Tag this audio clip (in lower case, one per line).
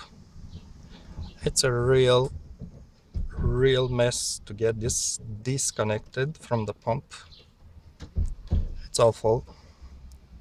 speech